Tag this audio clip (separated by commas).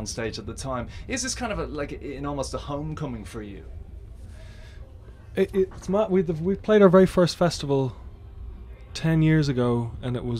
Speech